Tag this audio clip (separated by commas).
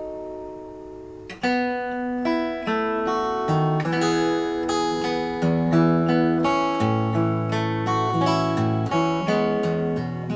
Music, Acoustic guitar, Strum, Guitar, Musical instrument